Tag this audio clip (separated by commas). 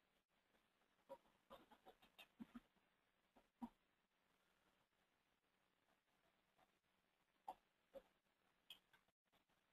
Speech